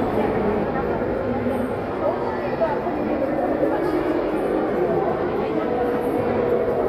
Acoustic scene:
crowded indoor space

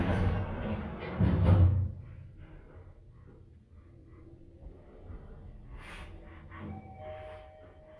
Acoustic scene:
elevator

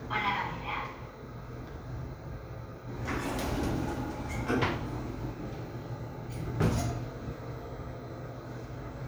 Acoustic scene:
elevator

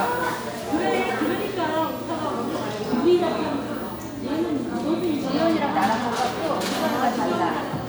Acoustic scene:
crowded indoor space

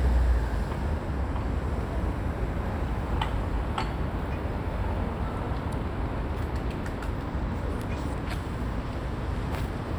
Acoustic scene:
residential area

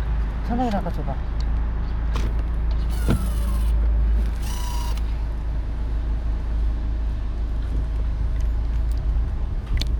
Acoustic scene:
car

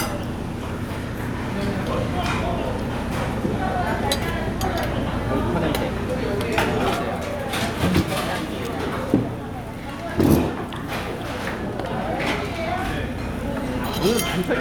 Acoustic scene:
crowded indoor space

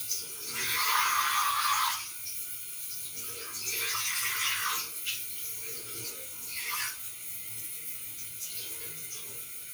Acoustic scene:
restroom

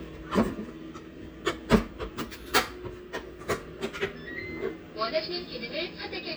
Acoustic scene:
kitchen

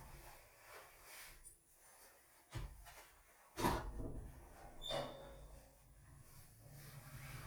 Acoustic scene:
elevator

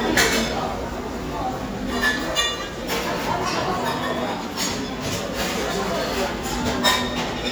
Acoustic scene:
crowded indoor space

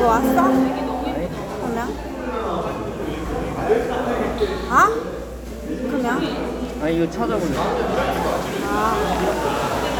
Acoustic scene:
cafe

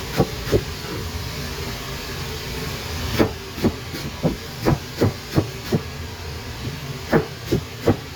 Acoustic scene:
kitchen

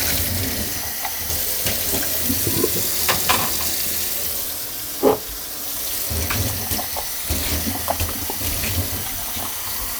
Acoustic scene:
kitchen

